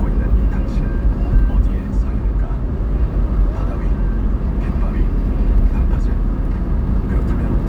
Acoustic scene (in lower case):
car